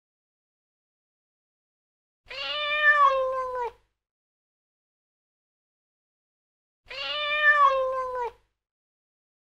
A cat meows one time